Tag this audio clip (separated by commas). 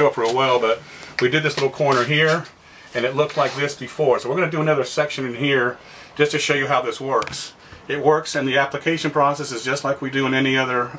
Speech